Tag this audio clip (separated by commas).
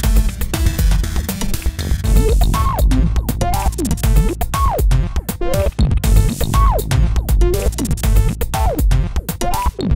Drum machine, Music